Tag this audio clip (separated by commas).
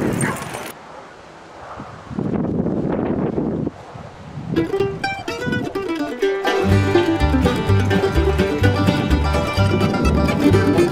Dog, Mandolin, pets, Animal